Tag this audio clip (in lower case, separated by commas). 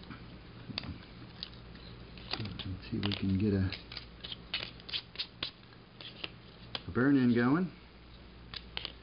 wood